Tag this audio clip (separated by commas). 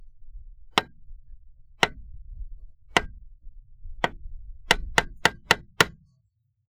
Hammer, Tools